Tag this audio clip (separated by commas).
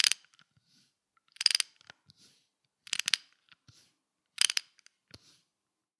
Ratchet, Mechanisms, Tools